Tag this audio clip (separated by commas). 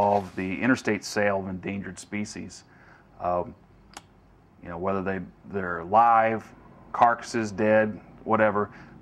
Speech